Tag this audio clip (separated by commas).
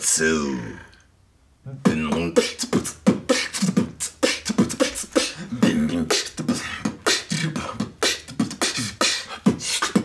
beat boxing